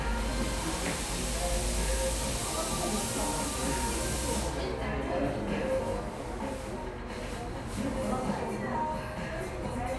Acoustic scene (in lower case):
cafe